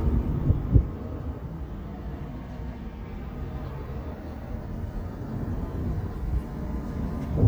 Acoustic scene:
park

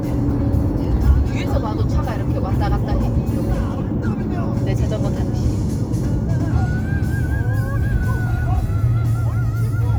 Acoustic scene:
car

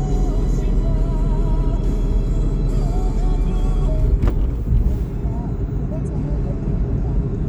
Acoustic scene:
car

